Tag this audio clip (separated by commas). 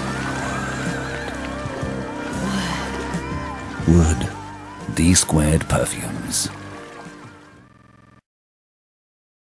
Music, Speech